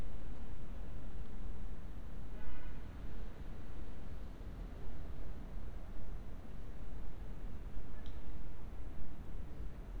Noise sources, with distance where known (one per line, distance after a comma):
car horn, far